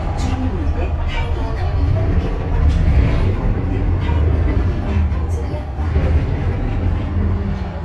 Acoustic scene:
bus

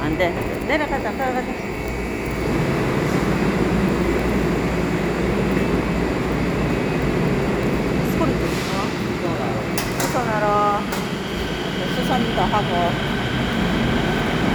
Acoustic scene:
subway station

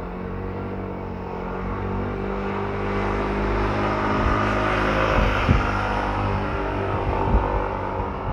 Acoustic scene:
street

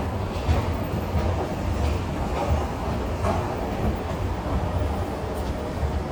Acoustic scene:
subway station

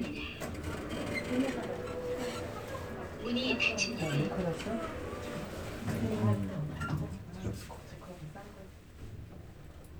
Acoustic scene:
elevator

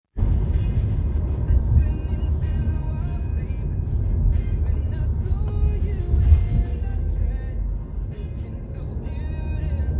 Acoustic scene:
car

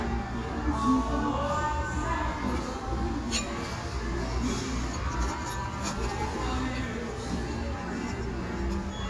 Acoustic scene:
restaurant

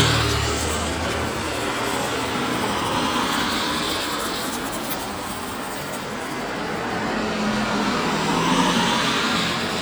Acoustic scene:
street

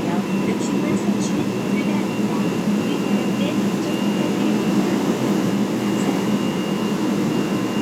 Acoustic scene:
subway train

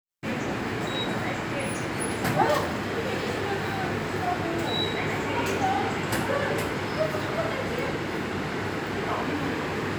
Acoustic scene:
subway station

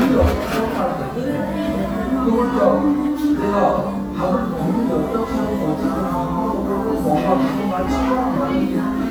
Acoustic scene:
cafe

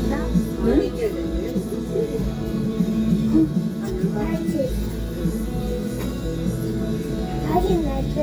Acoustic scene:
restaurant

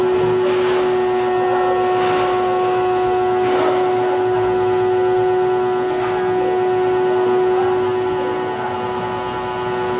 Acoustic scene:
cafe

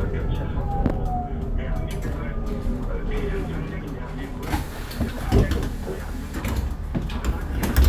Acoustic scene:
bus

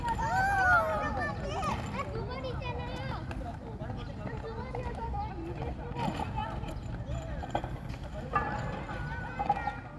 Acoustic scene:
park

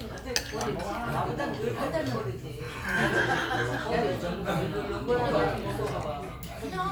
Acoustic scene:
crowded indoor space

